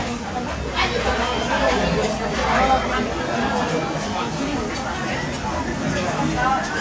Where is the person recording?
in a crowded indoor space